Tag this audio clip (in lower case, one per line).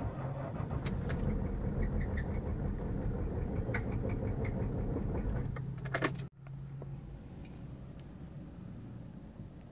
engine starting
vehicle